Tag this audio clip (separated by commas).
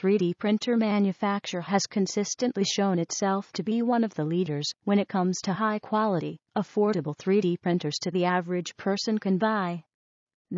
Speech